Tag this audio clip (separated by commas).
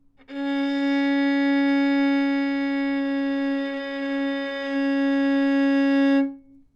Music, Musical instrument, Bowed string instrument